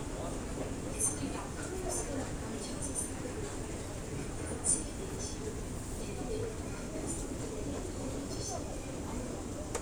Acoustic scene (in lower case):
crowded indoor space